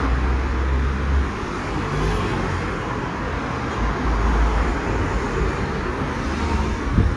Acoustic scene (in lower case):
street